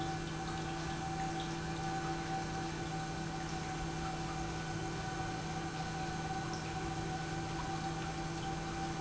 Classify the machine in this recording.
pump